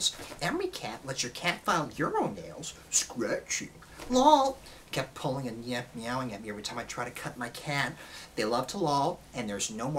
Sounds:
speech

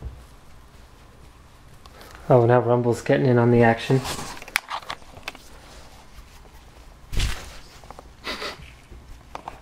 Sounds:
speech

